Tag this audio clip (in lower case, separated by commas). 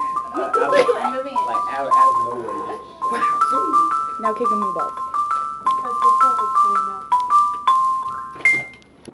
music, speech, xylophone